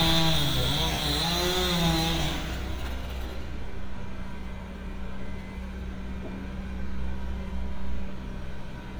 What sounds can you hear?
unidentified powered saw